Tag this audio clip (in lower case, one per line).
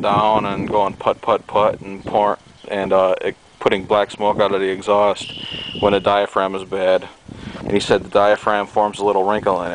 speech